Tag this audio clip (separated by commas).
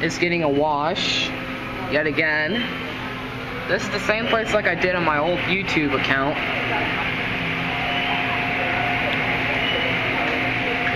Speech